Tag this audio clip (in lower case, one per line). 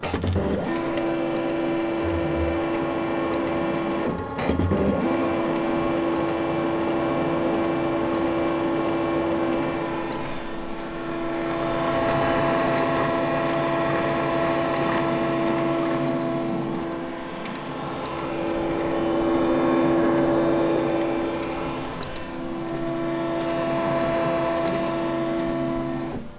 mechanisms
printer